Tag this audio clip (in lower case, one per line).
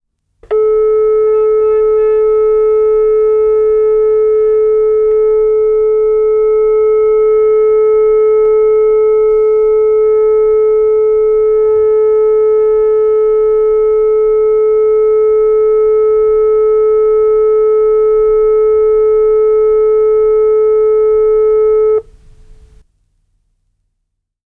telephone
alarm